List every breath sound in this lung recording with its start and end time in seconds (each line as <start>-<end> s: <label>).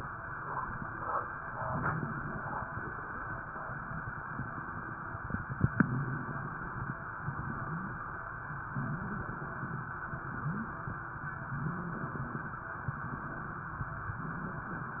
1.57-2.97 s: inhalation
1.57-2.97 s: crackles
5.54-6.94 s: inhalation
7.16-8.07 s: inhalation
7.16-8.07 s: wheeze
8.71-9.43 s: inhalation
8.71-9.43 s: wheeze
10.17-10.89 s: inhalation
10.17-10.89 s: wheeze
11.61-12.32 s: inhalation
11.61-12.32 s: wheeze
14.24-14.96 s: inhalation
14.24-14.96 s: wheeze